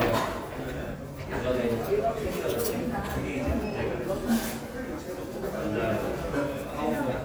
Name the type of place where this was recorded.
crowded indoor space